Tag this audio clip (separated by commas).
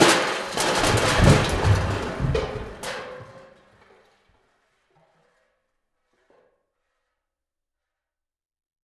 Crushing